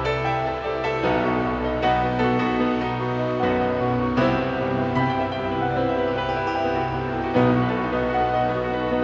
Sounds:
music, musical instrument

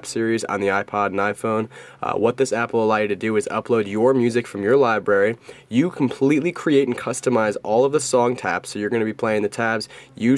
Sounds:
speech

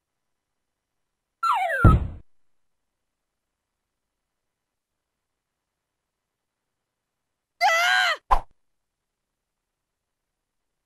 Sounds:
music, silence

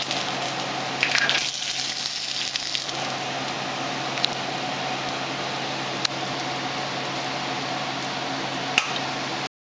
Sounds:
sizzle, frying (food)

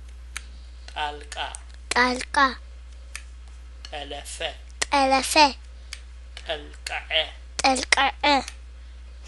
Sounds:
man speaking, child speech, speech

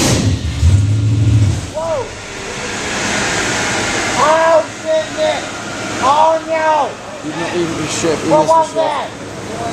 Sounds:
speech

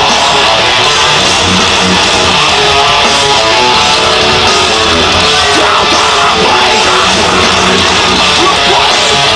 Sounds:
outside, urban or man-made, music

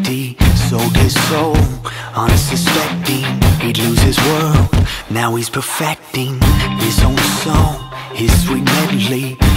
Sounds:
music

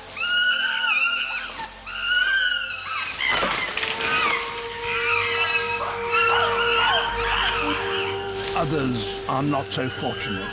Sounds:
chimpanzee pant-hooting

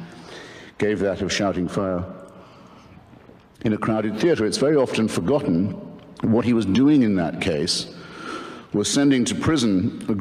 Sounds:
speech, narration, male speech

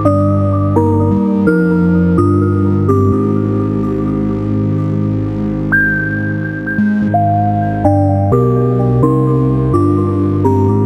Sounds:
music, ambient music

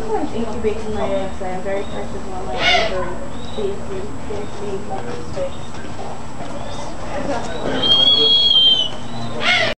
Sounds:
owl

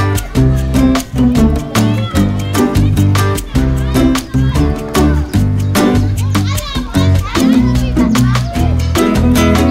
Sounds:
speech, music

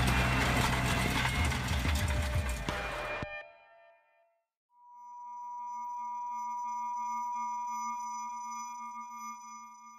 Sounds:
sine wave, chirp tone

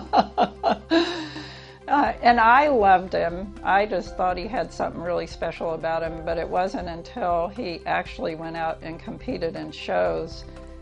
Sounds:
music, speech

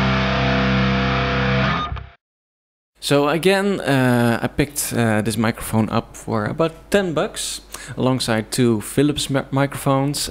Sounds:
music, speech

